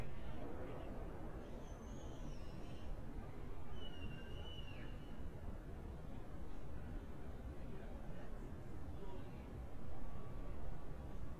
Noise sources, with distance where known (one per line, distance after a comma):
unidentified human voice, far